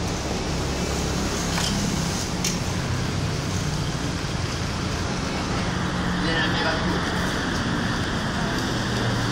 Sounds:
speech

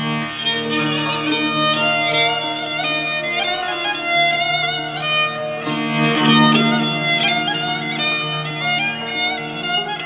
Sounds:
music
dance music

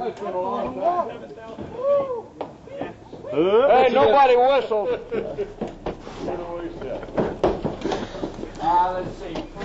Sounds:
speech

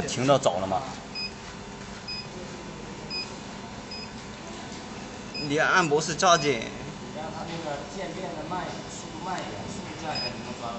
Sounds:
speech

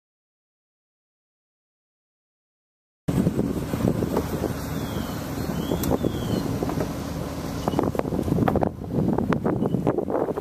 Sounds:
wind noise (microphone)
outside, rural or natural

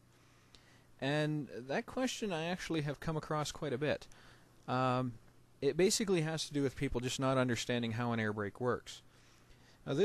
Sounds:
speech

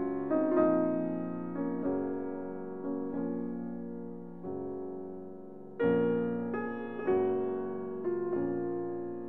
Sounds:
music

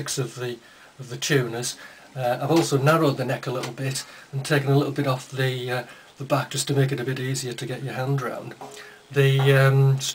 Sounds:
speech

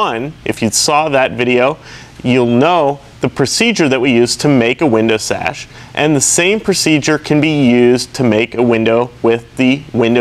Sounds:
speech

